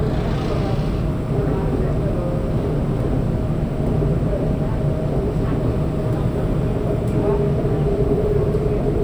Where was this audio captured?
on a subway train